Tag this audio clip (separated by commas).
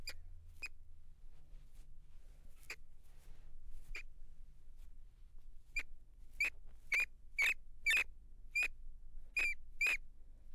Animal, Wild animals